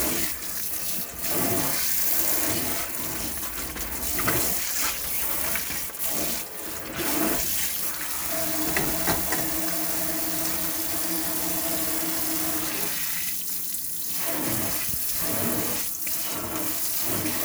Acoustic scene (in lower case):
kitchen